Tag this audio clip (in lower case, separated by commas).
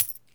home sounds, coin (dropping)